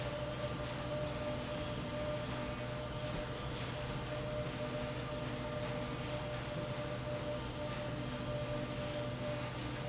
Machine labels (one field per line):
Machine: slide rail